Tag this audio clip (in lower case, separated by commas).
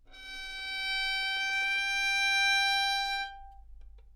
music, bowed string instrument, musical instrument